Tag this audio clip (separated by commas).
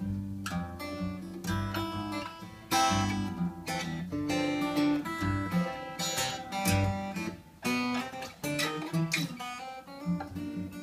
Music